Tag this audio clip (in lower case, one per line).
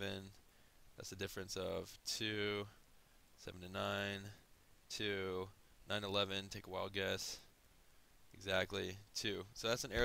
speech